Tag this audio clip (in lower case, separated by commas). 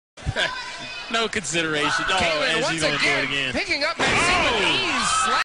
slam, speech